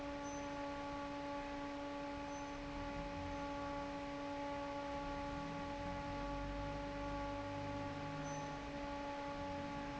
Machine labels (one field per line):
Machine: fan